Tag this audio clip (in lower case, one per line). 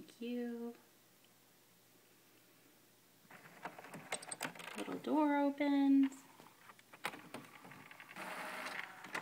speech
printer